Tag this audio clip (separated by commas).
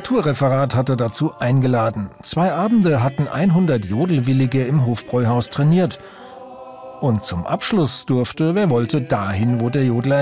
Singing, Speech, Music